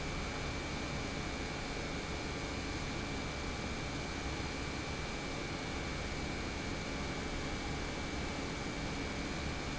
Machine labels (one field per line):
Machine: pump